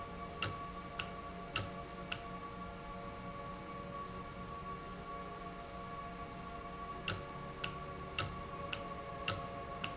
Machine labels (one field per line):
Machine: valve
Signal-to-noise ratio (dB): 0 dB